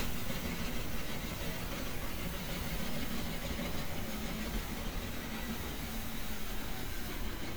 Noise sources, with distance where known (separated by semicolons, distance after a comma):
small-sounding engine, near